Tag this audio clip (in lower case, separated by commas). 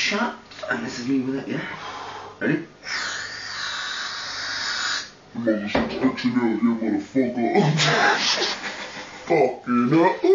speech, inside a small room